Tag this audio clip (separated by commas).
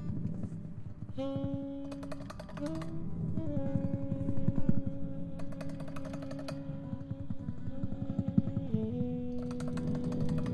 Music